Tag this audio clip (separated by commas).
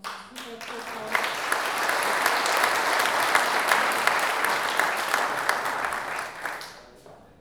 Human group actions, Applause